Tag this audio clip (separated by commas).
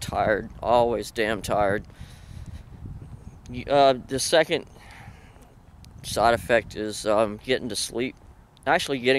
Speech